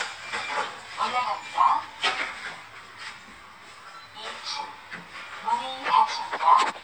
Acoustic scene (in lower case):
elevator